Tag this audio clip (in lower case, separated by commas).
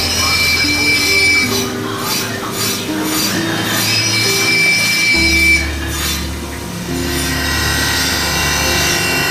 music